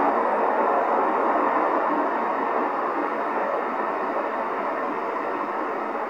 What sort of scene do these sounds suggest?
street